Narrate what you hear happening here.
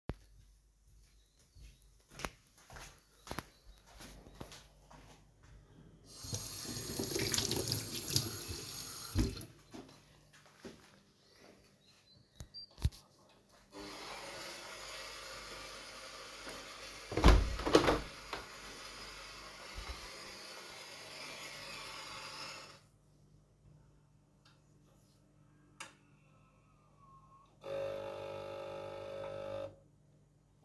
I went to the kitchen, rinsed my hands, and started the coffee machine. While it was running, I closed the window.